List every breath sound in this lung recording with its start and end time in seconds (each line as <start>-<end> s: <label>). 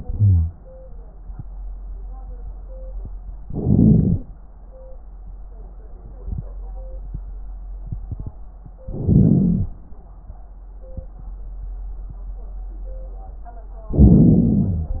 0.09-0.51 s: wheeze
3.44-4.26 s: inhalation
3.44-4.26 s: crackles
8.90-9.73 s: inhalation
8.90-9.73 s: crackles
13.93-15.00 s: inhalation
13.93-15.00 s: crackles